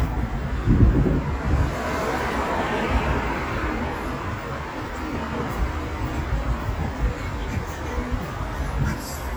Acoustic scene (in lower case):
street